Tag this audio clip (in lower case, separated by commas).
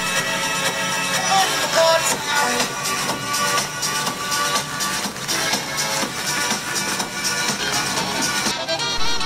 music, female singing